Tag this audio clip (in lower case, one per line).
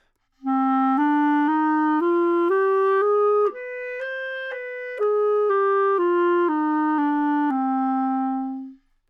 wind instrument
musical instrument
music